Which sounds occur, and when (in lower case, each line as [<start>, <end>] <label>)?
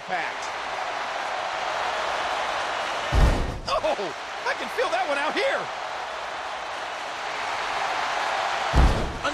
[0.00, 0.40] man speaking
[0.01, 3.57] cheering
[3.03, 3.51] thump
[3.61, 4.11] man speaking
[3.77, 9.33] cheering
[4.37, 5.67] man speaking
[8.68, 9.07] thump